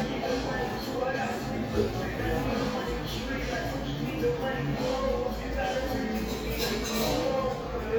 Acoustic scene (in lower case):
cafe